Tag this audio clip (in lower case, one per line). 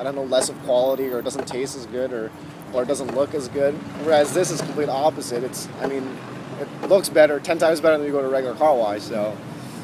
speech